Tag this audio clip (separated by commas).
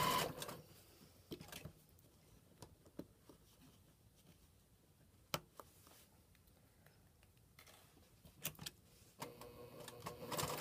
Sewing machine, inside a small room